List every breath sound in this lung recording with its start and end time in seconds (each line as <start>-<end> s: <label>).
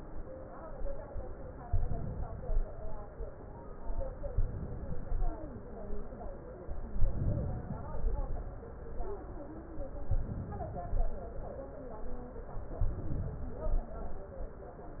1.61-2.64 s: inhalation
4.31-5.34 s: inhalation
7.07-8.09 s: inhalation
10.13-11.08 s: inhalation
12.83-13.78 s: inhalation